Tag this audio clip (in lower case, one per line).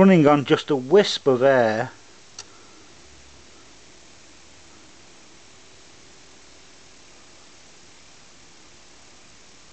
speech